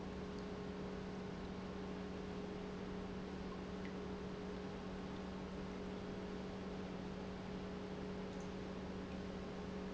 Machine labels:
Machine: pump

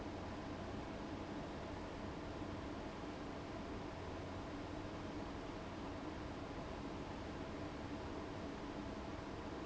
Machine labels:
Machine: fan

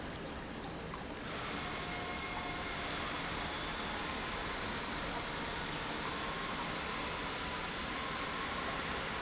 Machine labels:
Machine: pump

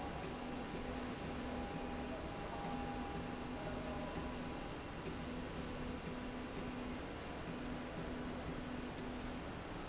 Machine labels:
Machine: slide rail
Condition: normal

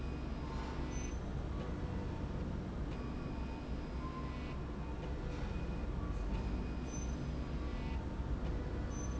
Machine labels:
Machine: slide rail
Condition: normal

